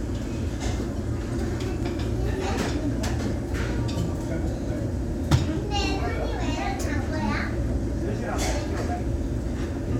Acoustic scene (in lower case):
restaurant